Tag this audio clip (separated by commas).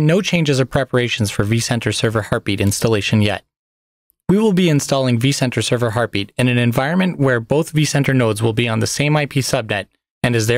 Speech